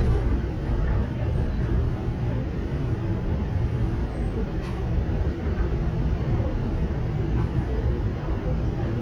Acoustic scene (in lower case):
subway train